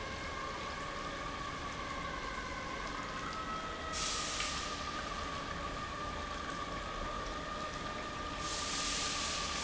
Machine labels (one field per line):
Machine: pump